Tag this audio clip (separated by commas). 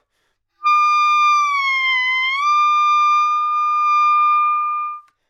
Musical instrument, Music, woodwind instrument